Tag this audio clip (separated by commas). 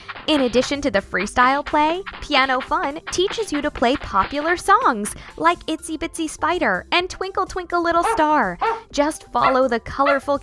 Speech, Music